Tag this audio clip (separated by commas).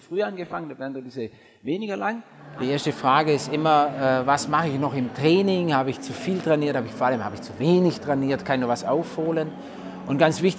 Speech, inside a large room or hall